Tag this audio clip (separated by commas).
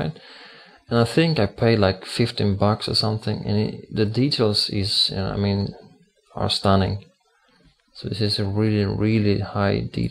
Speech